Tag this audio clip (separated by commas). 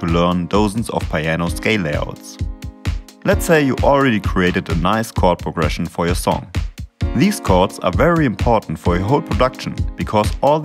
Speech, Music